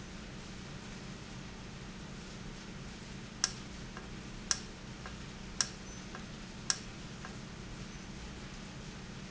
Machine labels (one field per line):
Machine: valve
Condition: normal